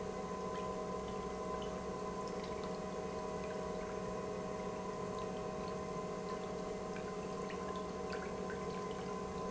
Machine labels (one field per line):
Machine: pump